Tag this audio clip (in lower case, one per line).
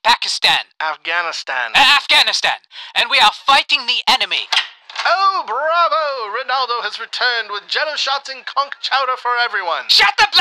speech